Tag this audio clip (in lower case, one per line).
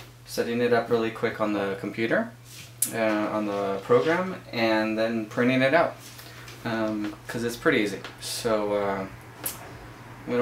speech